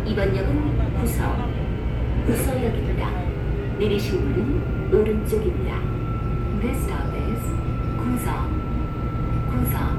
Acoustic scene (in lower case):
subway train